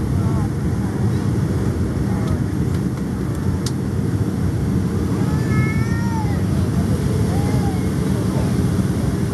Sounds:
speech

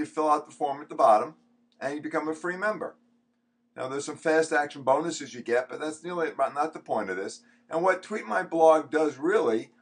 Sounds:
speech

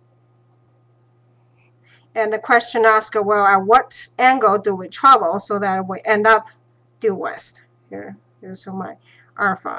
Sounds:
speech

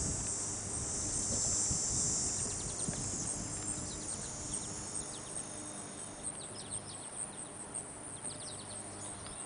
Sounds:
tweet, bird song, bird

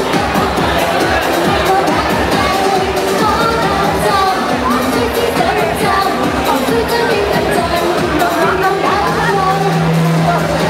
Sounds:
disco, inside a public space, singing, music, speech

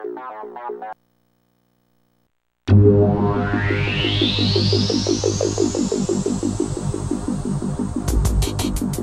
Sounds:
sound effect, hiss

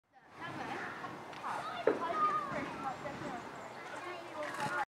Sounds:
speech

